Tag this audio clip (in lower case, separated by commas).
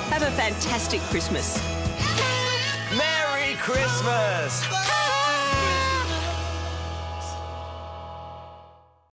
speech, music